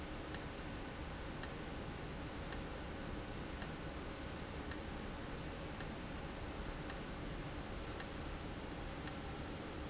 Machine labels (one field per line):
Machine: valve